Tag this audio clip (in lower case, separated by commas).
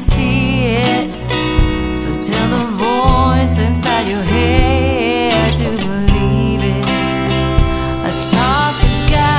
blues, music